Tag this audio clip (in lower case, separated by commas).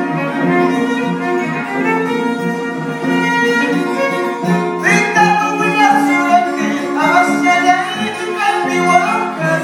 music, musical instrument, violin